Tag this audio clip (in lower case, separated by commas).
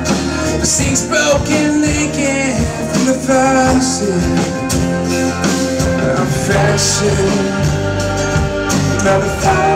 music, pop music